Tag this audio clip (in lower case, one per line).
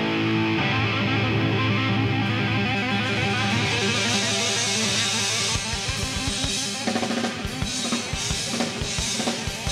heavy metal
music
progressive rock